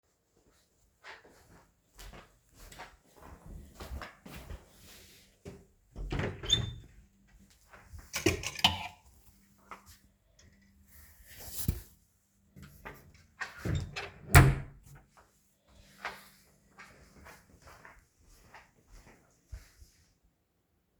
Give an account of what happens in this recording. I go to my wardrobe, take out a shirt and take it back to my room.